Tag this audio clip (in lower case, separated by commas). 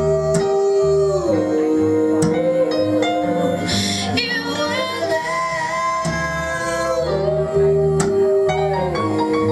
music, singing